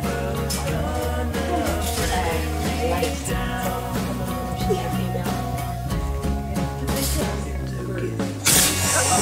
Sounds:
Music, Speech

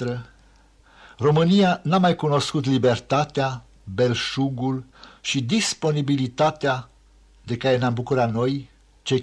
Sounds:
Speech

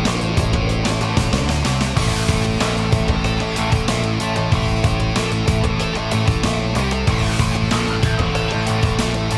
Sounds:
Music

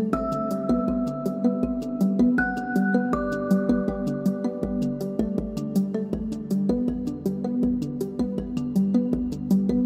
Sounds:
Music

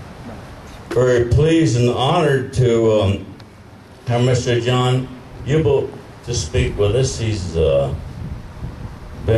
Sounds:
Male speech, Speech

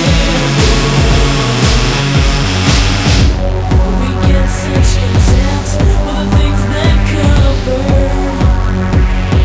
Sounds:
Singing, Music

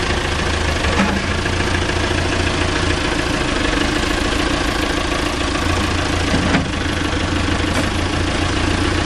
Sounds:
Vehicle

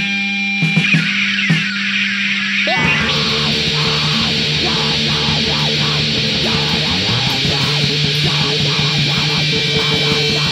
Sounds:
Music, White noise

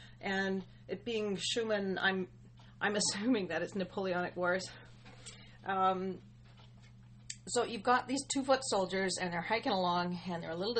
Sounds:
Speech

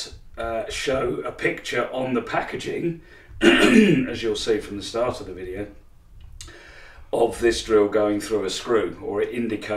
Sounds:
Speech

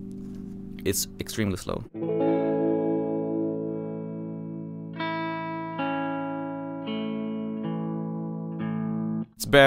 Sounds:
Musical instrument, Guitar, Speech, Effects unit, Music

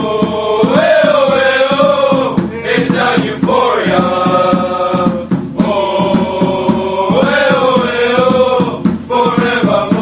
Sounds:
Music, Mantra

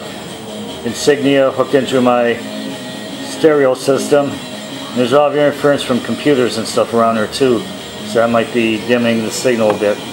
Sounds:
Speech, Music

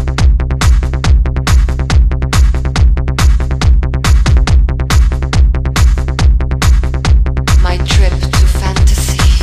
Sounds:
Music, Techno, Trance music, Speech

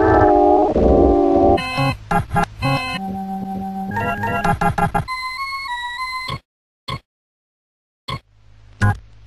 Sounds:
Country, Harmonic, Music

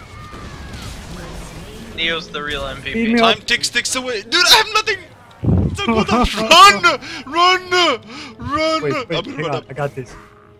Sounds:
Speech

